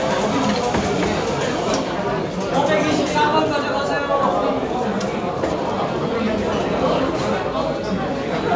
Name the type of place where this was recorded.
cafe